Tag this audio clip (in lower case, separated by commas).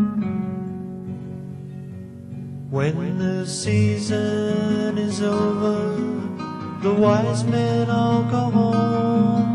music